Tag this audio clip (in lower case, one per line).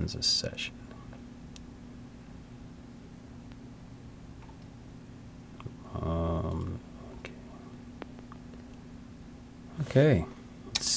speech